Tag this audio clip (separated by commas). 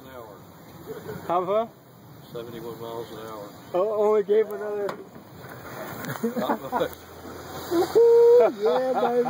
Vehicle, Speech